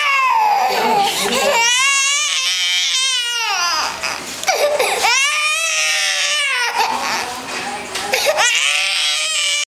A baby crying with people speaking